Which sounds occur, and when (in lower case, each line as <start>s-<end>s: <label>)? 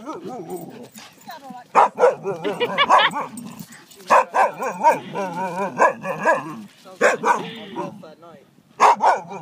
0.0s-0.8s: bow-wow
0.0s-9.4s: background noise
0.1s-0.2s: tick
0.9s-1.7s: pant (dog)
1.2s-1.7s: female speech
1.2s-8.5s: conversation
1.7s-3.3s: bow-wow
2.3s-3.1s: giggle
3.2s-3.8s: growling
3.9s-4.9s: female speech
4.1s-6.7s: bow-wow
6.8s-7.2s: female speech
7.0s-7.4s: bow-wow
7.3s-8.1s: growling
7.3s-7.8s: breathing
7.6s-8.4s: female speech
8.8s-9.4s: bow-wow